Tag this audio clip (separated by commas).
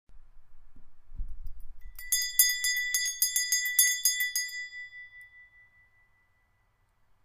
Bell